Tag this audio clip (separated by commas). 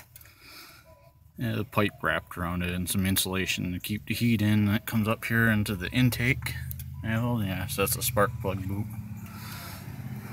Speech